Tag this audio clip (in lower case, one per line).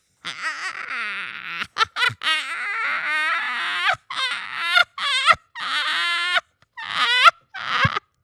laughter
human voice